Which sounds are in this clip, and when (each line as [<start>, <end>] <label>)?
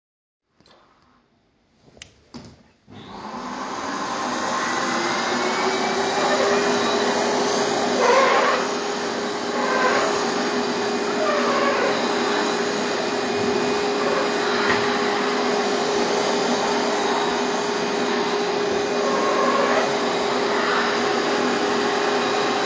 [1.96, 2.54] footsteps
[2.86, 22.66] vacuum cleaner